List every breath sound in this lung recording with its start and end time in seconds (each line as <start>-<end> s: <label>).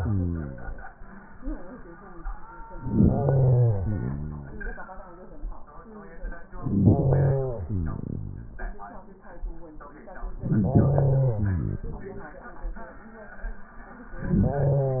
2.77-3.79 s: inhalation
3.78-5.18 s: exhalation
6.53-7.40 s: inhalation
7.37-8.83 s: exhalation
10.41-11.38 s: inhalation
11.40-12.59 s: exhalation